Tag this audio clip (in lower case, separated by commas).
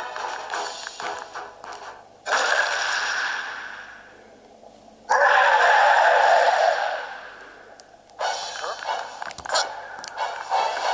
music, growling